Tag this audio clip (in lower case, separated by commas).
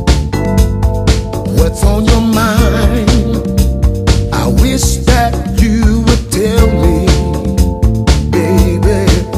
music